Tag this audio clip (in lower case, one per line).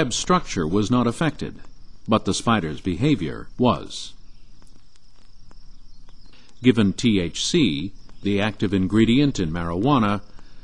speech